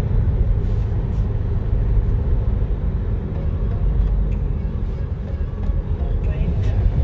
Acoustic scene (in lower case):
car